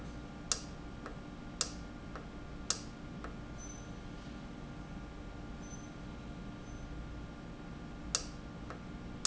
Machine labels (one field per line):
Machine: valve